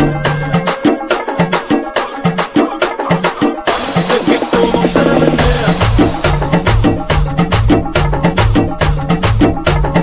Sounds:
music

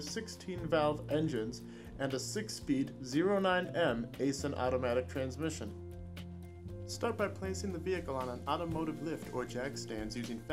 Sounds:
music
speech

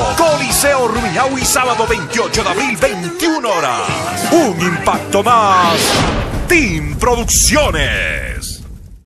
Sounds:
music
speech

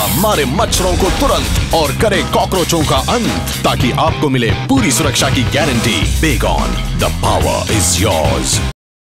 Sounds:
music
spray
speech

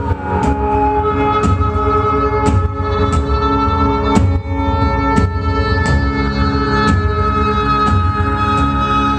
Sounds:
music

